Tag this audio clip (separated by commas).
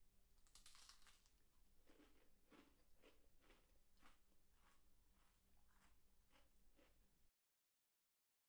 mastication